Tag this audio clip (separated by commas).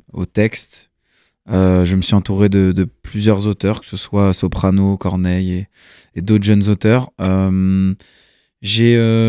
Speech